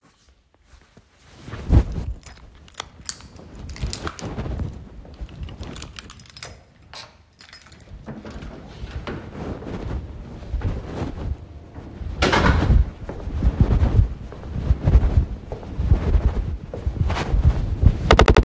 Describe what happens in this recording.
I took my keys out, and the keychain sound is audible. I then unlocked the door, opened it, and walked forward while the door closed behind me. While I was walking, the sound of my pants rubbing against the phone is also audible.